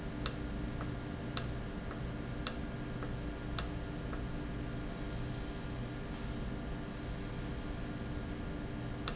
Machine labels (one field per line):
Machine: valve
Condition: normal